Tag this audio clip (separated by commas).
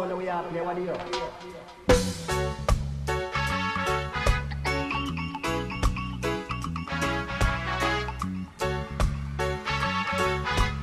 Music, Speech